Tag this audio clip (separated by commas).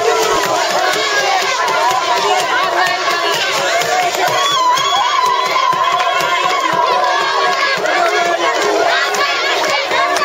people crowd, Crowd